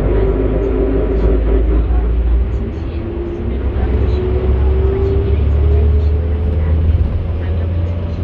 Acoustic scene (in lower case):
bus